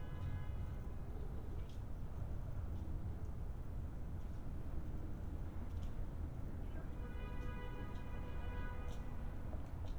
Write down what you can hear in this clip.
car horn